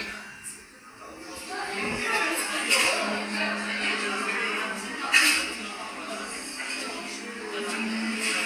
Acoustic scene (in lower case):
crowded indoor space